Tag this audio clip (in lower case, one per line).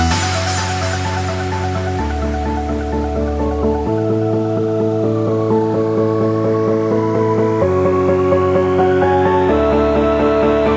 music